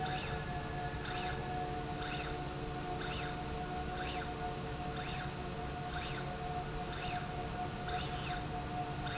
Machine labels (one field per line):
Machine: slide rail